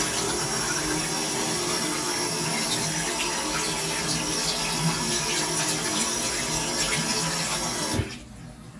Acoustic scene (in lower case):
restroom